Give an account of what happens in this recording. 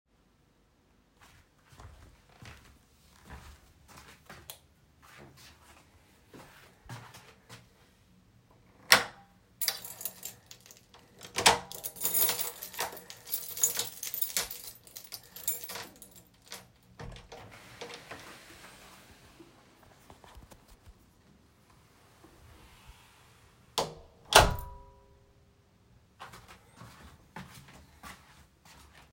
I walked to the door and switched off the light. I unlocked the door with my keys which jingled. I opened the door, stepped outside, and closed it behind me.